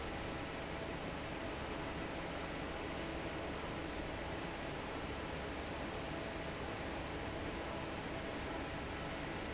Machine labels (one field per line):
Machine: fan